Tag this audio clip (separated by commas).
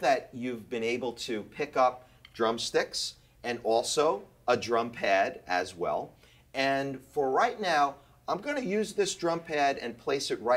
Speech